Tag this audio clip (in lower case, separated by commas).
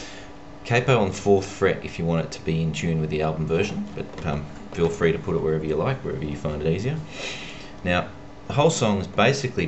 speech